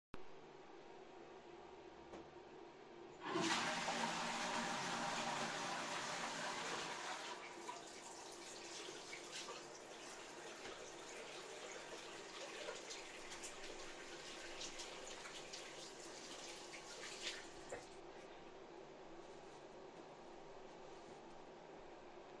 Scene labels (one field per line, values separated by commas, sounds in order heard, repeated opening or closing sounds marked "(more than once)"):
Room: bathroom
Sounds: toilet flushing, running water